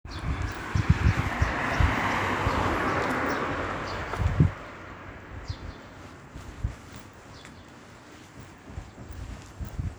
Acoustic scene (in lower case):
residential area